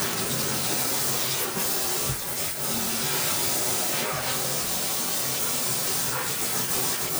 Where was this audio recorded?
in a kitchen